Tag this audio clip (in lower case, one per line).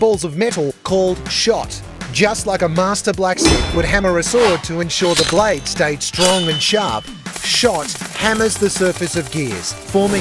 speech
music